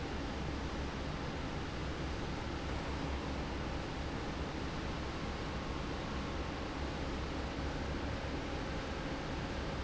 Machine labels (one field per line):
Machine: fan